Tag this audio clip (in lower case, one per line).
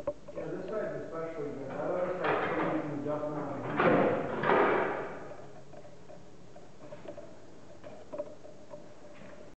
speech
inside a large room or hall